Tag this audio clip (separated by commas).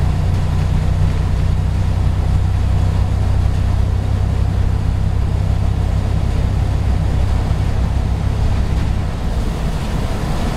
Vehicle